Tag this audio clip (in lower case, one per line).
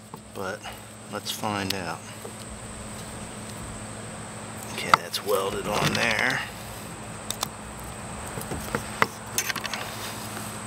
speech